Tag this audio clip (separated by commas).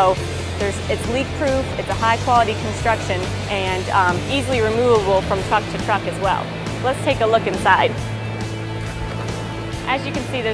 Music, Speech